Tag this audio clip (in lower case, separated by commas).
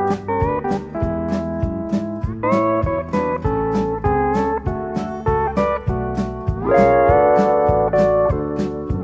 playing steel guitar